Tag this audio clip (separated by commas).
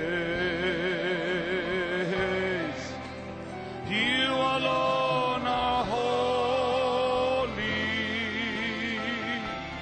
Music